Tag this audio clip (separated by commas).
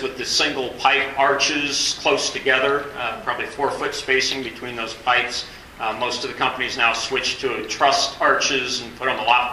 Speech